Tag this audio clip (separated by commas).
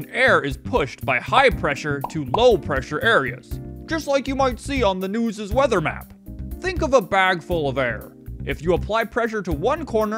Music, Speech